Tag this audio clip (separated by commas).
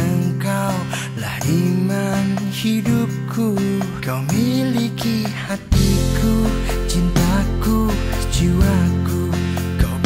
Music, Tender music